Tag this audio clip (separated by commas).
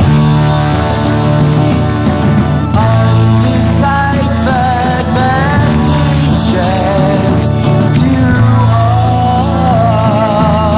Music